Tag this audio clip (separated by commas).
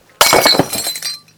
Glass, Shatter